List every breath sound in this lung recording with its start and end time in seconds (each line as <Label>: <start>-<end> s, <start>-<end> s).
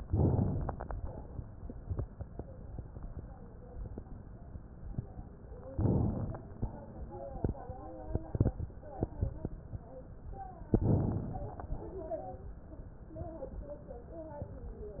Inhalation: 0.00-0.86 s, 5.73-6.58 s, 10.78-11.69 s
Exhalation: 0.86-1.40 s, 6.68-7.42 s, 11.69-12.52 s